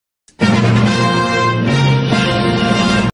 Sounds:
Music

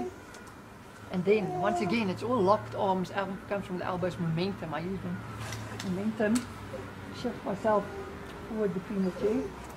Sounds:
Speech

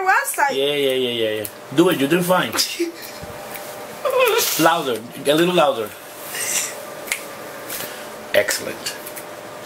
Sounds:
people finger snapping

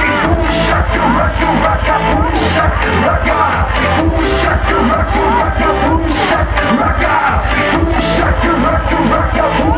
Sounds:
Music, Singing, Crowd

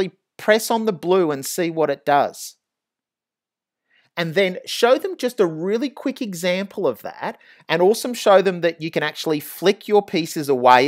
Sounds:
Speech

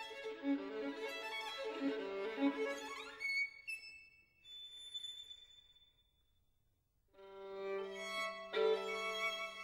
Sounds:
Musical instrument, Music, fiddle

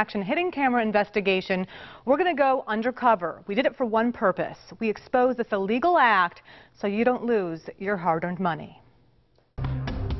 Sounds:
Music, Speech

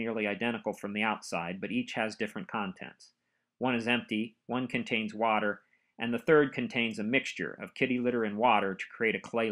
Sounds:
Speech

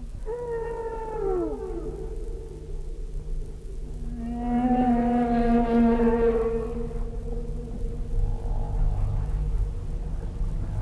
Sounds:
Animal

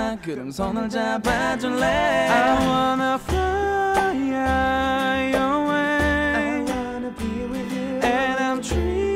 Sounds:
Music

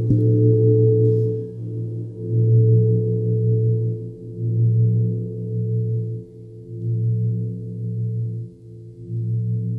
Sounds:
Singing bowl

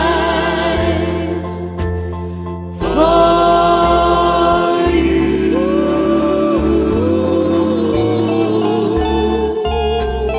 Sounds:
Steel guitar, Music

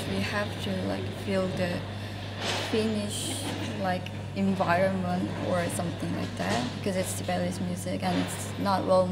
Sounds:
Speech

